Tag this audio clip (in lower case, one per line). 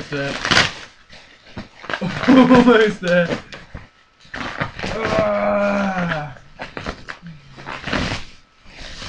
speech